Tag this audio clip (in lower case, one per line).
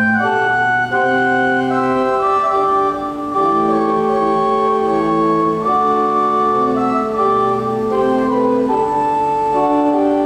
music